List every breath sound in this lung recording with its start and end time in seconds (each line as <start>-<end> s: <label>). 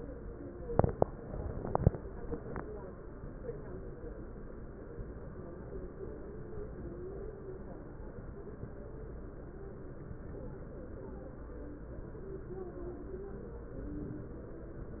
13.83-14.44 s: inhalation